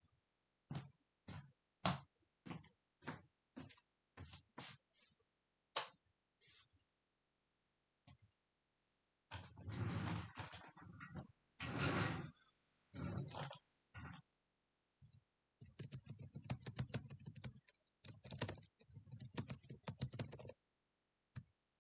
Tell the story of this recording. I went to the lightswitch, actuated it, sat down on the officechair and moved it a bit. Then i started typing on my laptops's keyboard.